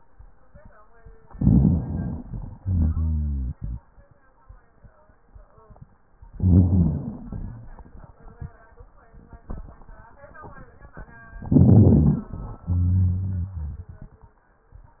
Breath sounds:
1.27-2.57 s: rhonchi
1.27-2.61 s: inhalation
2.58-4.08 s: exhalation
2.62-3.83 s: rhonchi
6.33-7.25 s: inhalation
6.33-7.26 s: rhonchi
7.27-8.66 s: exhalation
11.43-12.27 s: inhalation
11.43-12.27 s: rhonchi
12.32-14.34 s: exhalation
12.64-13.85 s: rhonchi

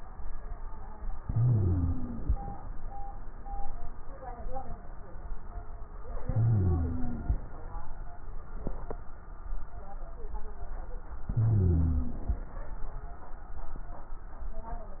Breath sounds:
1.21-2.49 s: inhalation
1.21-2.49 s: wheeze
6.24-7.34 s: inhalation
6.24-7.34 s: wheeze
11.29-12.38 s: inhalation
11.29-12.38 s: wheeze

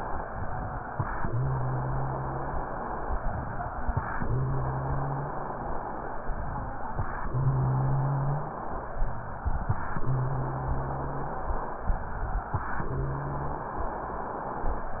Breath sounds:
0.24-0.82 s: exhalation
1.27-2.70 s: inhalation
1.30-2.62 s: wheeze
3.15-3.74 s: exhalation
4.23-5.49 s: inhalation
4.28-5.37 s: wheeze
6.26-6.85 s: exhalation
7.28-8.54 s: inhalation
7.31-8.47 s: wheeze
8.97-9.46 s: exhalation
10.04-11.39 s: inhalation
10.09-11.25 s: wheeze
11.89-12.48 s: exhalation
12.85-13.81 s: inhalation
12.92-13.72 s: wheeze

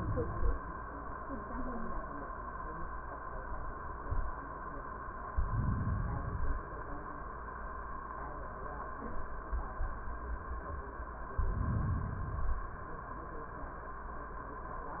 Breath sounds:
5.33-6.28 s: inhalation
6.24-7.19 s: exhalation
11.32-12.26 s: inhalation
12.27-13.21 s: exhalation

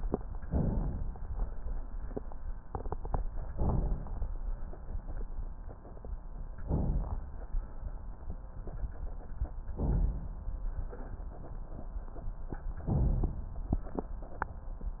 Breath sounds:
0.42-1.19 s: inhalation
3.49-4.25 s: inhalation
6.59-7.36 s: inhalation
9.73-10.49 s: inhalation
10.48-11.24 s: exhalation
12.85-13.61 s: inhalation
13.61-14.37 s: exhalation

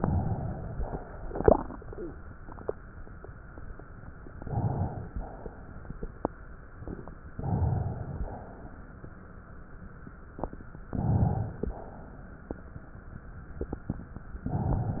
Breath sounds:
4.33-5.08 s: inhalation
5.12-6.53 s: exhalation
7.31-8.23 s: inhalation
8.20-9.02 s: exhalation
10.86-11.68 s: inhalation
11.67-12.49 s: exhalation

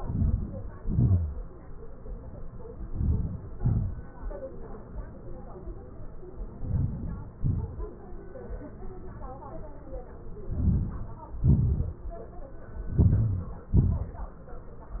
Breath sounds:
0.00-0.63 s: inhalation
0.84-1.23 s: exhalation
2.88-3.44 s: inhalation
3.63-4.00 s: exhalation
6.71-7.28 s: inhalation
7.42-7.77 s: exhalation
10.59-11.22 s: inhalation
11.55-12.02 s: exhalation
12.97-13.65 s: inhalation
13.79-14.34 s: exhalation

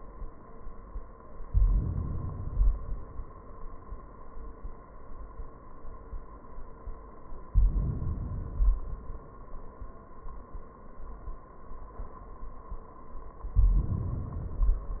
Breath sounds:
1.50-2.45 s: inhalation
2.43-3.33 s: exhalation
7.50-8.30 s: inhalation
8.30-9.38 s: exhalation
13.44-14.48 s: inhalation
14.44-15.00 s: exhalation

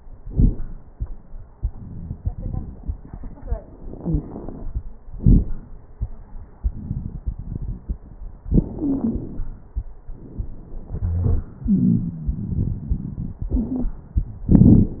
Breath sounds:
3.92-4.64 s: inhalation
3.98-4.24 s: wheeze
5.12-5.68 s: exhalation
5.12-5.68 s: crackles
8.78-9.24 s: wheeze
10.94-11.47 s: wheeze
11.63-12.50 s: wheeze
13.56-13.98 s: wheeze

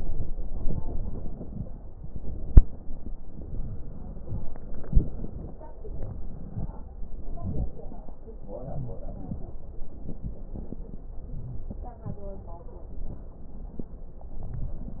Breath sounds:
5.76-6.96 s: crackles
5.76-6.99 s: inhalation
6.99-8.41 s: exhalation
6.99-8.41 s: crackles
8.42-9.99 s: inhalation
8.60-9.08 s: wheeze
11.30-11.79 s: wheeze
14.23-15.00 s: inhalation
14.37-14.86 s: wheeze

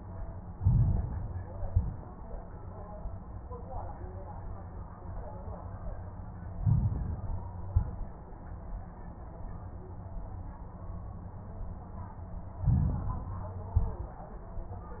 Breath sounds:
0.49-1.44 s: inhalation
0.49-1.44 s: crackles
1.59-2.12 s: exhalation
1.59-2.12 s: crackles
6.50-7.45 s: inhalation
6.50-7.45 s: crackles
7.60-8.13 s: exhalation
7.60-8.13 s: crackles
12.58-13.53 s: inhalation
12.58-13.53 s: crackles
13.68-14.21 s: exhalation
13.68-14.21 s: crackles

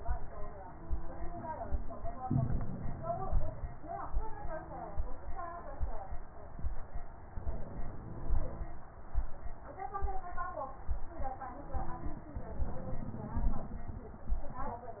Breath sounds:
2.18-3.53 s: inhalation
2.18-3.53 s: crackles
7.32-8.66 s: inhalation
7.32-8.66 s: crackles
11.76-13.81 s: inhalation
11.76-13.81 s: crackles

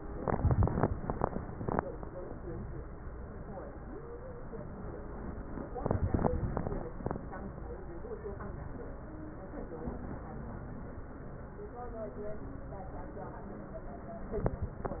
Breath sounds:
8.29-9.00 s: wheeze

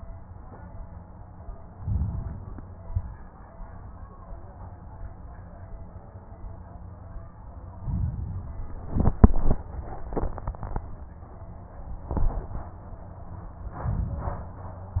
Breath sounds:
1.69-2.60 s: inhalation
2.60-3.21 s: exhalation
7.69-8.85 s: inhalation
13.72-15.00 s: inhalation

